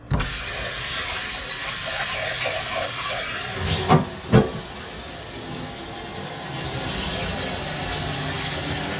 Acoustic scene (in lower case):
kitchen